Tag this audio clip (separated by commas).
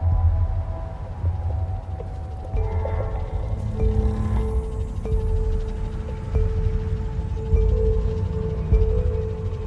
Music, Percussion